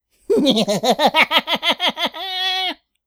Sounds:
human voice, laughter

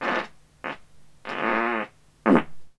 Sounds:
fart

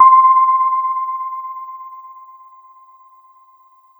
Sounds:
piano, keyboard (musical), music, musical instrument

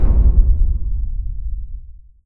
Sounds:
boom, explosion

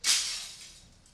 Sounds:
glass, shatter

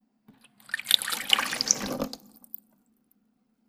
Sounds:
home sounds, sink (filling or washing)

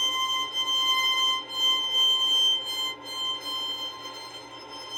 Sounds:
musical instrument, bowed string instrument, music

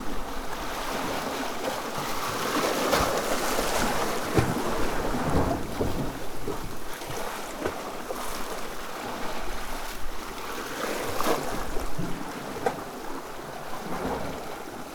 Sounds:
ocean, surf, water

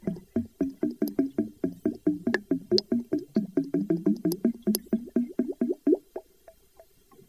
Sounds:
liquid

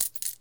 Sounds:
coin (dropping), home sounds

